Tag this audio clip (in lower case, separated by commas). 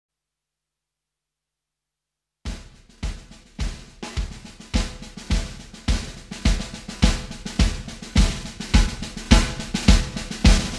music, drum kit, drum